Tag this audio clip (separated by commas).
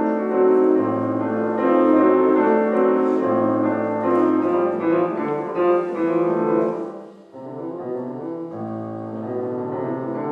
Music